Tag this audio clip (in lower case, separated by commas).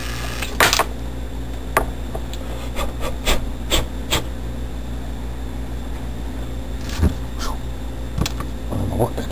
speech